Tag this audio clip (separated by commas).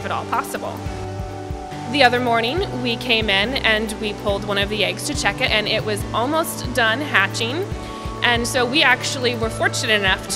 Speech, Music